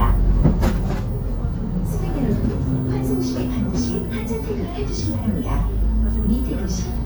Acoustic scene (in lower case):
bus